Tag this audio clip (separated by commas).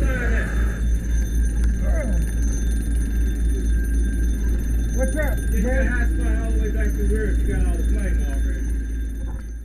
Speech